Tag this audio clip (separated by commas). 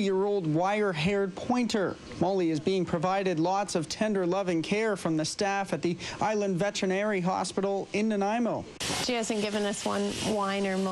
Speech